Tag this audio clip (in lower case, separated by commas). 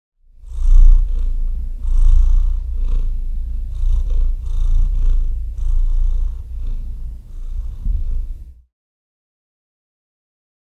purr, domestic animals, cat, animal